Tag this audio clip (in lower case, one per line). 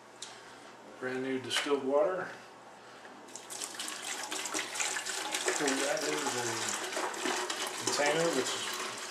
water